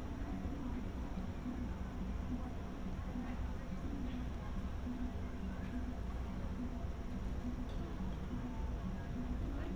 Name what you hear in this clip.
background noise